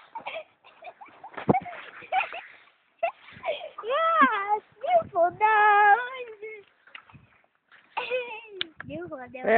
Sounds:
Speech

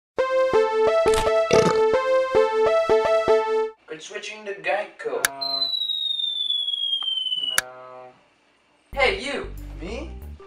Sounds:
Speech, Music

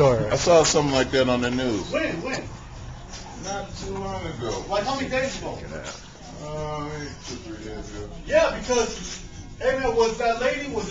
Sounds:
Speech

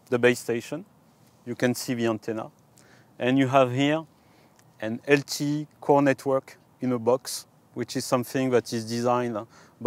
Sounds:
Speech

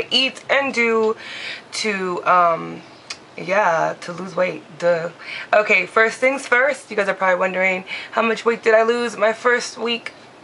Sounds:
Speech

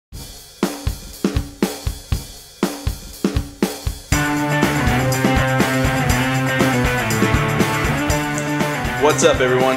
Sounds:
Music, Speech

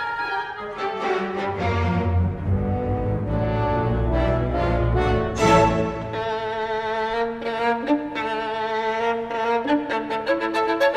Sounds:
Music, Violin, Musical instrument

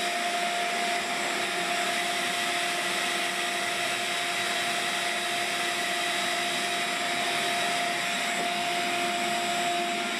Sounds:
Vacuum cleaner

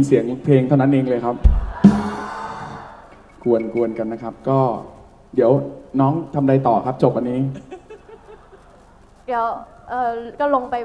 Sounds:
Music, Speech

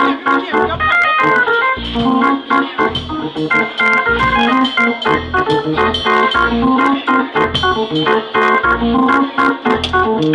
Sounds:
Hammond organ, playing hammond organ, Organ

